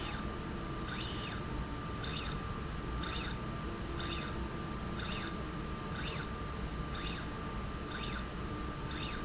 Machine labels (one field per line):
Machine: slide rail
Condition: normal